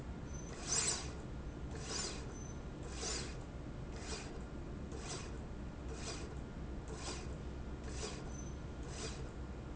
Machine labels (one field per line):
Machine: slide rail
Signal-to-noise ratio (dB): 0 dB